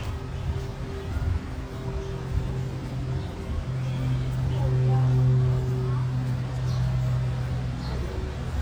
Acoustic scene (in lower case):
residential area